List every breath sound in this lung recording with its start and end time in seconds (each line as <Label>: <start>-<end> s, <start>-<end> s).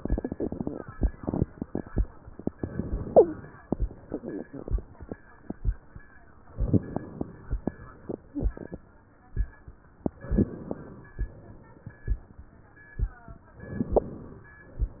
Inhalation: 2.54-3.61 s, 6.58-7.65 s, 10.06-11.12 s, 13.51-14.57 s
Exhalation: 3.64-4.80 s, 7.67-8.73 s, 11.20-12.26 s
Wheeze: 3.11-3.38 s